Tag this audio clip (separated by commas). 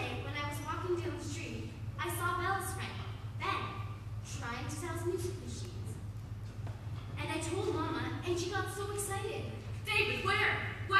Speech